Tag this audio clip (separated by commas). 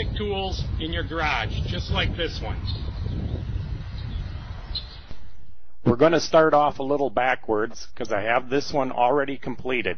Speech